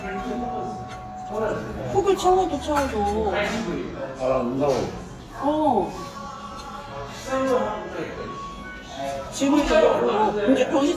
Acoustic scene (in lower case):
restaurant